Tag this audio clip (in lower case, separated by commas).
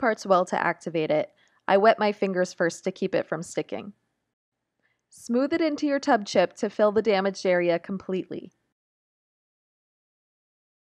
speech